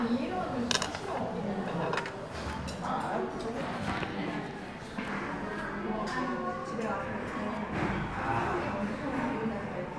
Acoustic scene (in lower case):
crowded indoor space